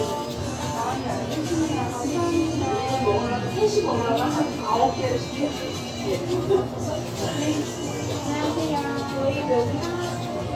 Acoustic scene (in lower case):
restaurant